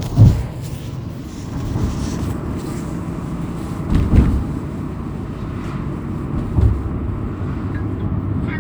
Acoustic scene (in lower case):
car